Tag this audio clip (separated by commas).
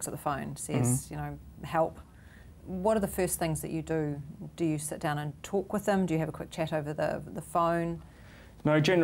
Speech, inside a small room